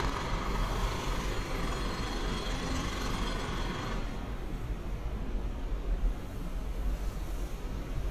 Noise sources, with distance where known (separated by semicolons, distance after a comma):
jackhammer